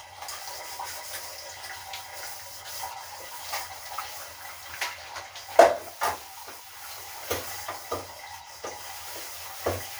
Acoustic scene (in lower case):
kitchen